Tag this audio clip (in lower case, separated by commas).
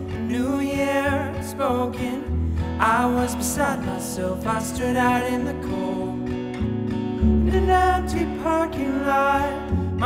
music